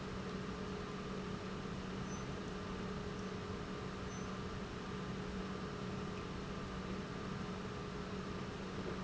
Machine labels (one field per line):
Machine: pump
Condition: normal